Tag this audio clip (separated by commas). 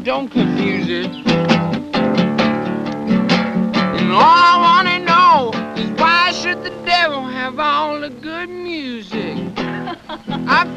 Music